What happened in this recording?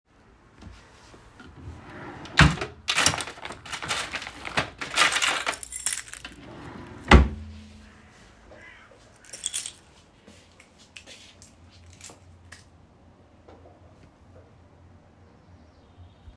I opened the drawer to search for my keys. I found it and closed it afterwards.